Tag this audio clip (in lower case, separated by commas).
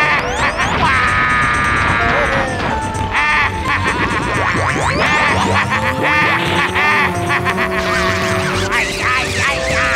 music